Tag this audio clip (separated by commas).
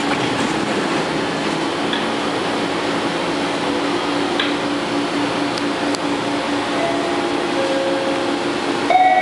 Vehicle, metro, Train